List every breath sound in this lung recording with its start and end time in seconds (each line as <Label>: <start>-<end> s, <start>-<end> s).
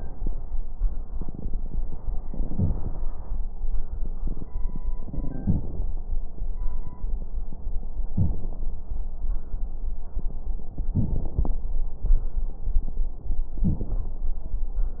Inhalation: 1.07-2.08 s, 3.83-4.83 s
Exhalation: 2.08-3.32 s, 4.86-5.85 s
Crackles: 1.07-2.08 s, 2.10-3.32 s, 3.83-4.83 s, 4.86-5.85 s